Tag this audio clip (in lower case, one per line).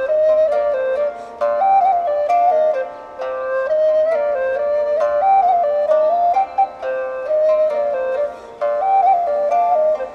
music